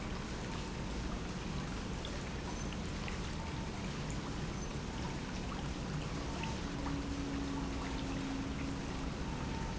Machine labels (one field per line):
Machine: pump